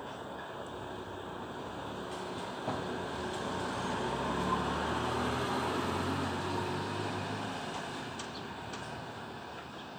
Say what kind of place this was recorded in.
residential area